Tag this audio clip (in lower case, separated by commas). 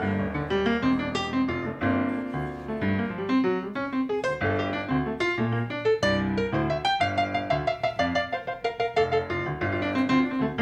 piano, keyboard (musical)